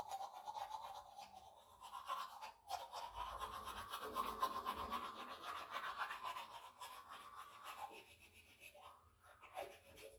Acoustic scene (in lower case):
restroom